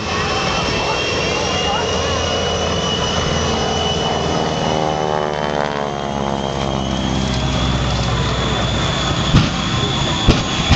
An aircraft motor is running, high-pitched whining is present, and a crowd of people are talking in the background